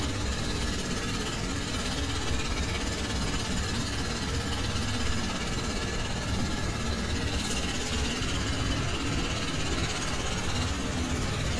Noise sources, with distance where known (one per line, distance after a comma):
jackhammer, near